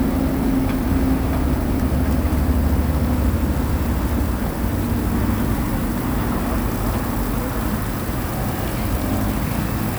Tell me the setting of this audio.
street